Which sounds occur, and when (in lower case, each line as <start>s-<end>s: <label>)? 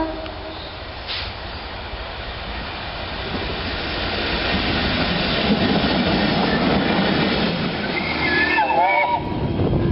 0.0s-9.9s: train
7.9s-9.5s: train horn